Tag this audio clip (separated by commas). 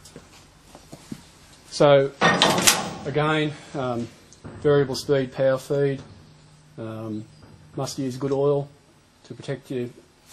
Speech